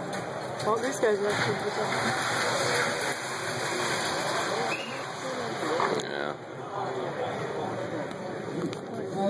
A woman speaking a whistle, and clanking